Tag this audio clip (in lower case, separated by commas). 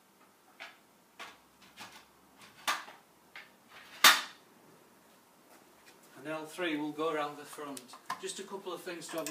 speech, inside a large room or hall